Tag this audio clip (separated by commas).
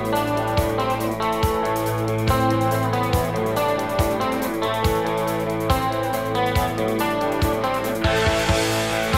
Music